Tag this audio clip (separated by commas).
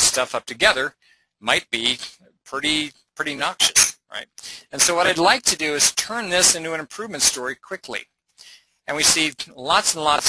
Speech